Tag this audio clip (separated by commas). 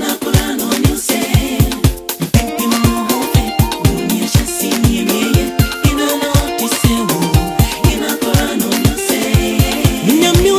Christian music, Gospel music, Music